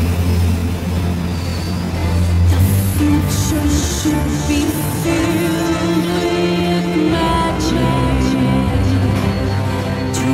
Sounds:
echo, music

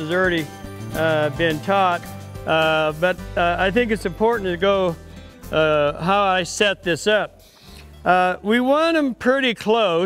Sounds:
speech, music

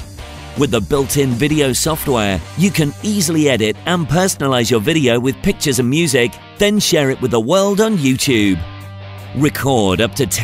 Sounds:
speech, music

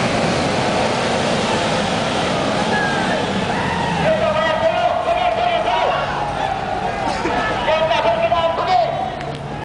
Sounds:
speech, waterfall

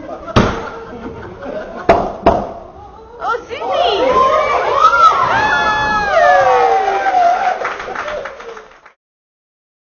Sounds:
speech

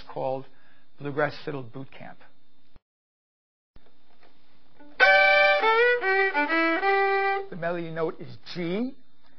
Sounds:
speech, musical instrument, music, fiddle

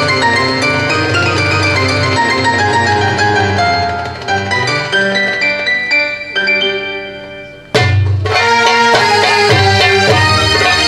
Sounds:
music

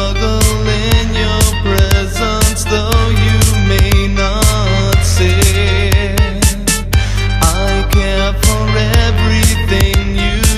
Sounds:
music

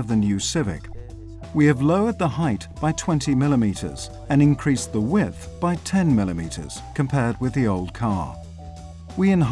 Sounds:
music, speech

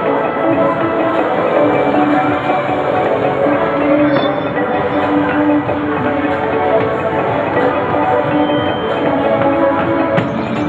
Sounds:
music

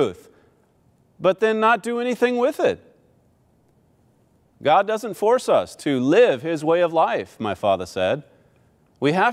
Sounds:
speech

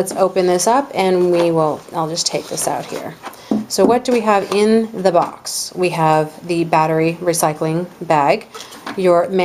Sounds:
speech

